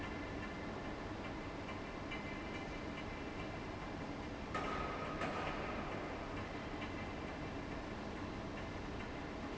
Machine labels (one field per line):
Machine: fan